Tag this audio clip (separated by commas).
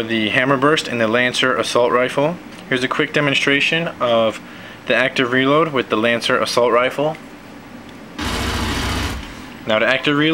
Speech